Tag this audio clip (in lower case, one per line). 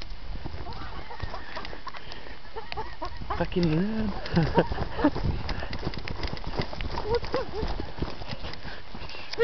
speech